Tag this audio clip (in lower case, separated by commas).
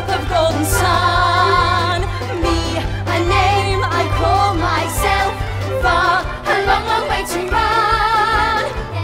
funny music, music